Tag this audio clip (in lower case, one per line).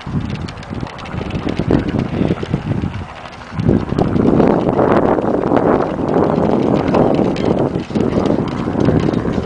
clip-clop
horse clip-clop